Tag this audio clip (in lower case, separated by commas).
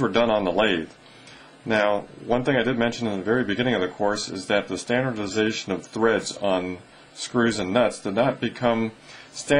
speech